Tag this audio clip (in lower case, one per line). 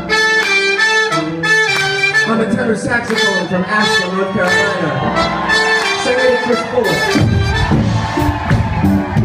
inside a large room or hall
music
inside a public space
speech